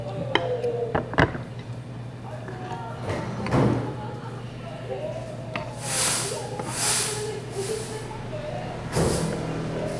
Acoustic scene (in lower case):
restaurant